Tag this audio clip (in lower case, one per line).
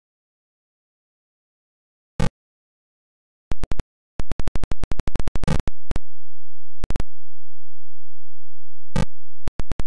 silence